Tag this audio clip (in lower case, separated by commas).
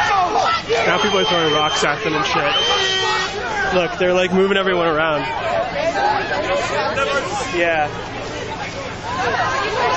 speech